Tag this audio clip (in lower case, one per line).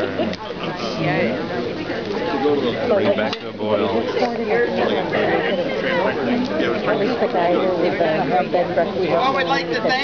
speech